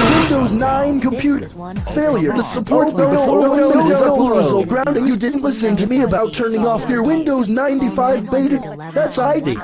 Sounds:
speech

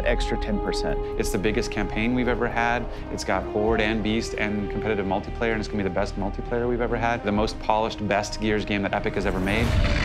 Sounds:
music
speech

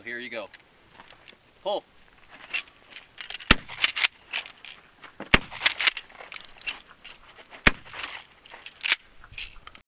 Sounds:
speech

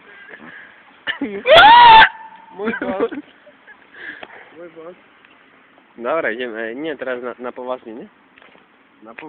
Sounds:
speech

